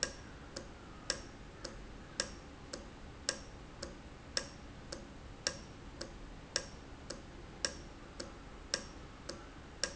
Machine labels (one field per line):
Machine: valve